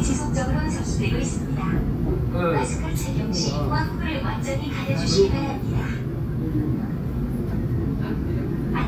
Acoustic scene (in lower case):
subway train